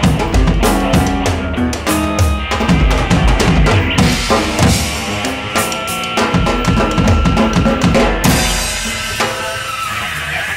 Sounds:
Music, Drum kit, Drum, Rock music, Musical instrument, Progressive rock

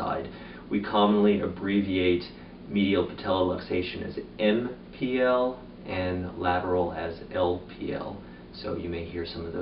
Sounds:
Speech

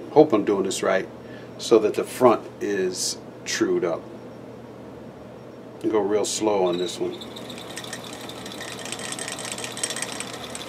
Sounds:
Tools, Power tool, Speech

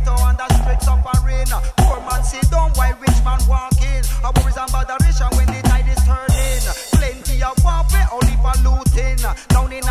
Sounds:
Music

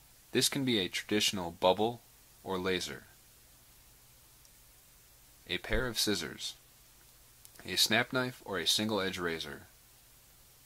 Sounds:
Speech

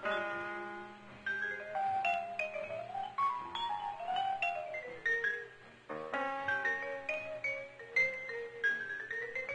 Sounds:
Music

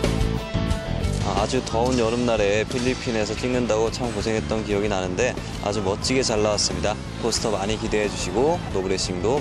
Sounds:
Speech, Music

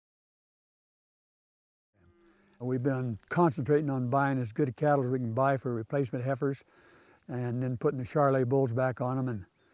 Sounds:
Speech

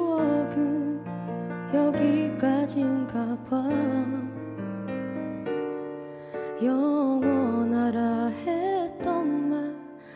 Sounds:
Music

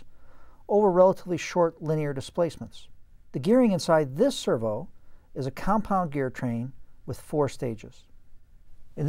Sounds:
Speech

